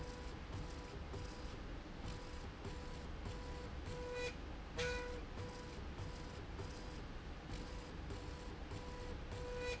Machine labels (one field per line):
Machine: slide rail